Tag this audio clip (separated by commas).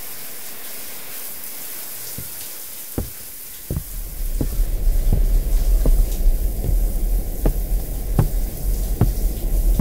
Sink (filling or washing)